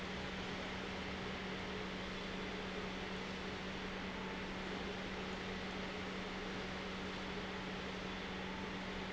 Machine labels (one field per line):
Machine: pump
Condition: normal